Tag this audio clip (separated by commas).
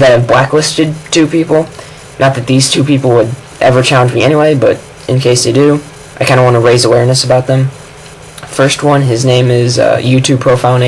Speech